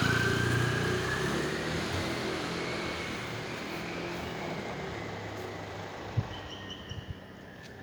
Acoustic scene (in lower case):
residential area